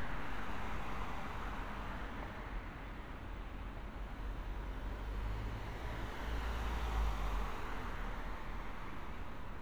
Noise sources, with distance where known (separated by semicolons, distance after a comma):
engine of unclear size, far